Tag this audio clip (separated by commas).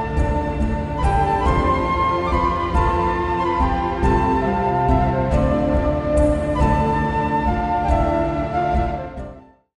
Music